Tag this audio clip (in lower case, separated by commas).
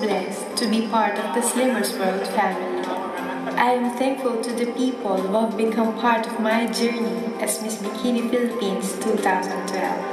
speech, music